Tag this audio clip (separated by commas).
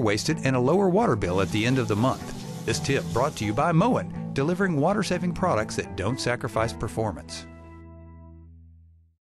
Water tap, Speech, Music